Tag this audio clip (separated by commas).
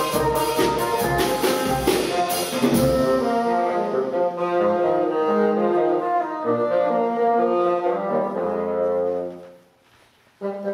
playing bassoon